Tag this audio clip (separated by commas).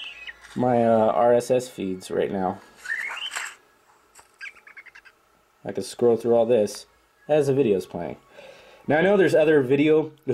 Speech, Music, inside a small room, Bird